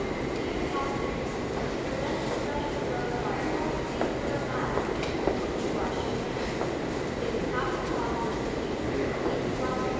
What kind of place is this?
subway station